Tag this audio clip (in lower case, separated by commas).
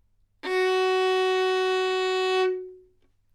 musical instrument, music, bowed string instrument